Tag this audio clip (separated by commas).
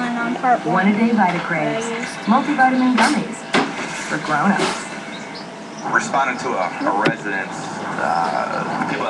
Speech